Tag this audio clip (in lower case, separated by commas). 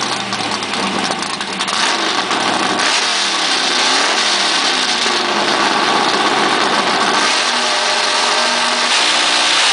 race car